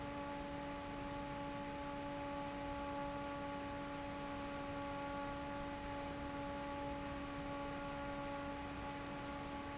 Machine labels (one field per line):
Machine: fan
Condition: normal